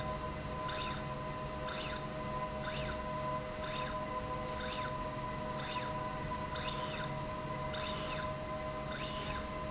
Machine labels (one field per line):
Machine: slide rail